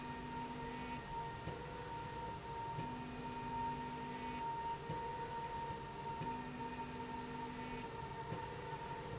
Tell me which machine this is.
slide rail